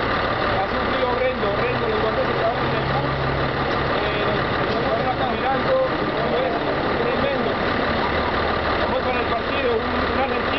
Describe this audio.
Men talking with vehicle engine noises in background